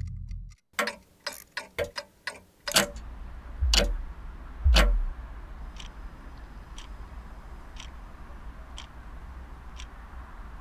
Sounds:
tick-tock, tick

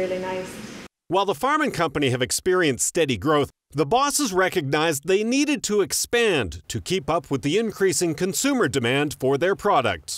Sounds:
speech

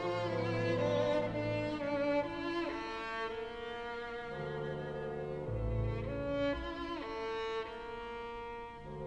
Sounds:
classical music, musical instrument, orchestra, bowed string instrument, music, fiddle

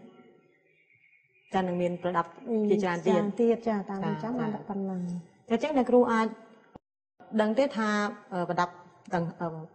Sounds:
speech

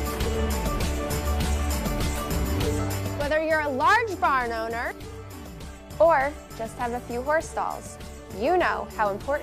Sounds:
speech, music

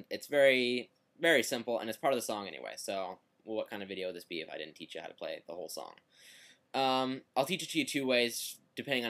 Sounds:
speech

